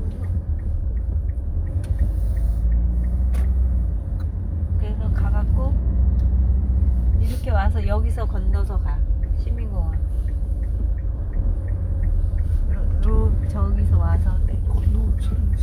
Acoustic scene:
car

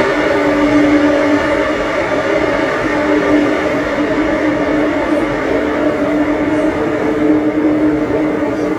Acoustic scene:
subway train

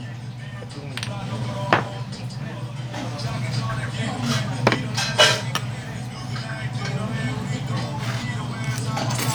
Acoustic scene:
restaurant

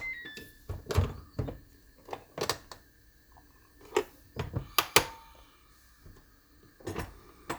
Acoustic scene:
kitchen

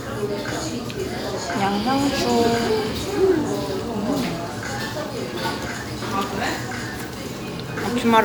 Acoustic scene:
restaurant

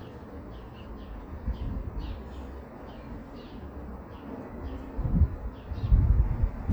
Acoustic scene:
residential area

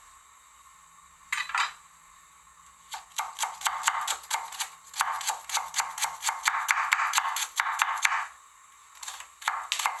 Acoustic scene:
kitchen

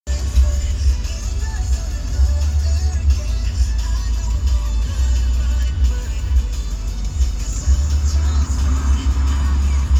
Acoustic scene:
car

